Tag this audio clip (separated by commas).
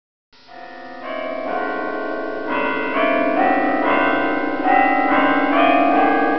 Keyboard (musical), Musical instrument, Music